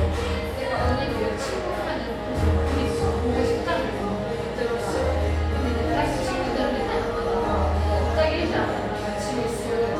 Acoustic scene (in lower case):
cafe